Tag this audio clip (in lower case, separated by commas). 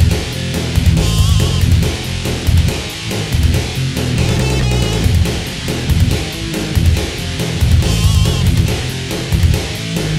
middle eastern music, music, soundtrack music